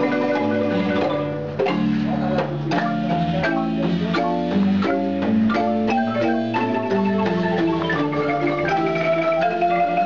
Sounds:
Music, Marimba, Percussion

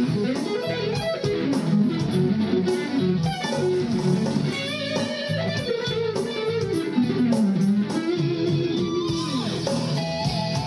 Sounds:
Guitar, Bass guitar, Musical instrument, Plucked string instrument, Music

